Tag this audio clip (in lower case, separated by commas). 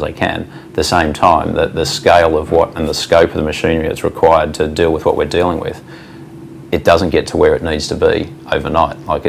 speech